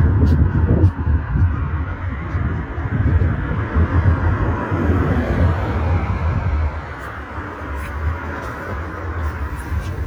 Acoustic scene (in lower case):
street